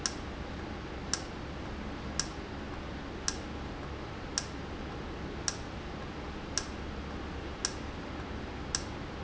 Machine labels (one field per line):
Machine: valve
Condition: normal